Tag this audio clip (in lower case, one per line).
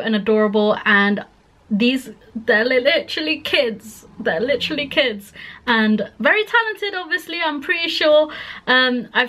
speech